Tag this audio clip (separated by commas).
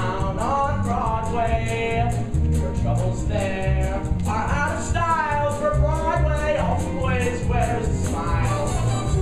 Music